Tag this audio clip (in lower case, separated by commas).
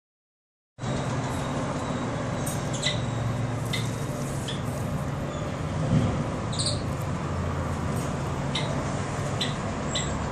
chipmunk chirping